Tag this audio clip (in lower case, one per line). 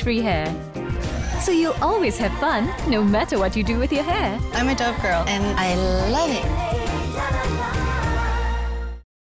music
speech